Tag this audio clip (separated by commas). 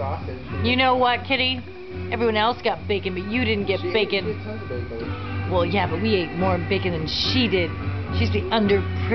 Speech, Music